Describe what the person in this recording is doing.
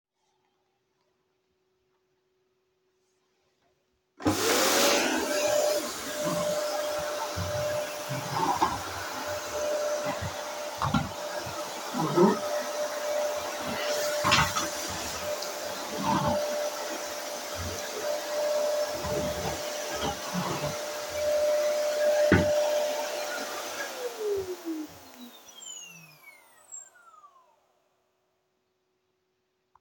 Turn vacuum cleaner on,vacuum for 2 sec,walk while vacuuming,turn vacuum off